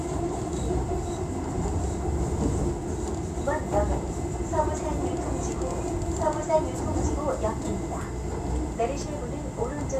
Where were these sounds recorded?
on a subway train